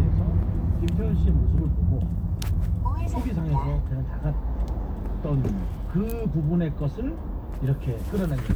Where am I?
in a car